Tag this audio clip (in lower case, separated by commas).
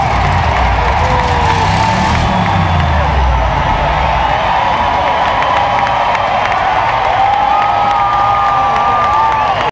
truck, vehicle